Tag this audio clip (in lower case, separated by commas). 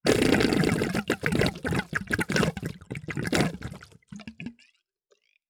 water, gurgling